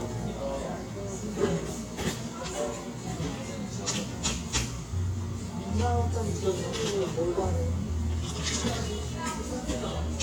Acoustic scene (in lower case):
cafe